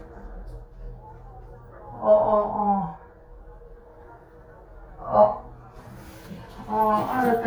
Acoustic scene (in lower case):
elevator